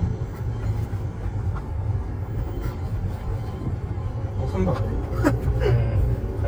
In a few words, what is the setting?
car